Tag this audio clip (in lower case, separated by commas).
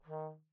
brass instrument, music, musical instrument